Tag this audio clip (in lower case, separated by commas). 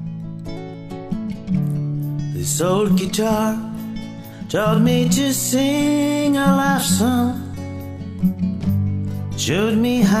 music, musical instrument, guitar, plucked string instrument, strum